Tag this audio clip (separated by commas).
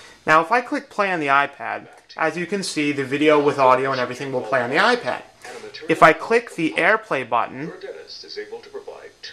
Speech, inside a small room